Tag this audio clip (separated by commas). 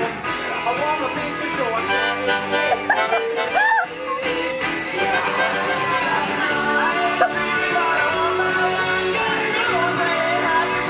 Music